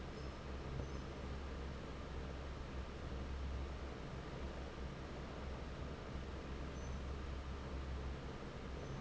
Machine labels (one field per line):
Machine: fan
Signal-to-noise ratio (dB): 6 dB